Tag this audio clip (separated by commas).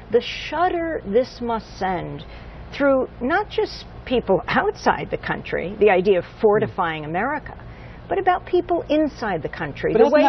Speech, inside a small room